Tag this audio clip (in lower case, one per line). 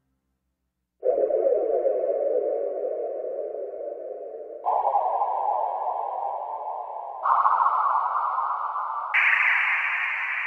synthesizer
musical instrument
piano
keyboard (musical)
electric piano
music